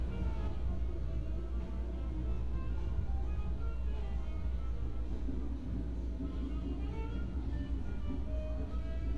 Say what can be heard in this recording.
music from a fixed source